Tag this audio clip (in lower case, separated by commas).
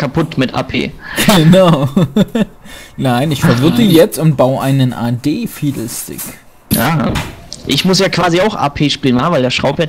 speech